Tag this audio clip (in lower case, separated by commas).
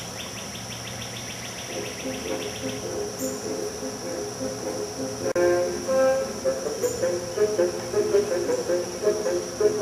outside, rural or natural, music